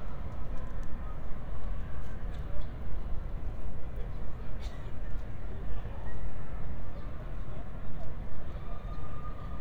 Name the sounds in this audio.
unidentified human voice